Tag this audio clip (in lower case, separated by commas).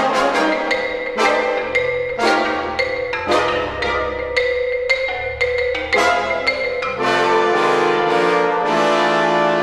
mallet percussion, glockenspiel, xylophone